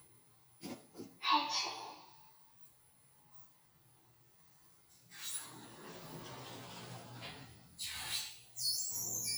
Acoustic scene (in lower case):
elevator